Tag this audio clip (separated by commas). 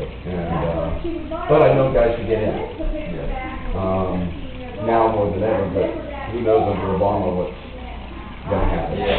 Speech